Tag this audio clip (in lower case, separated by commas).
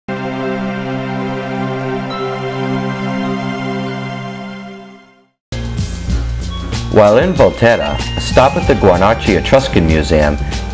background music